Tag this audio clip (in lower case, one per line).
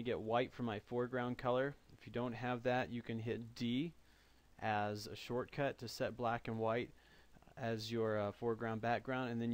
speech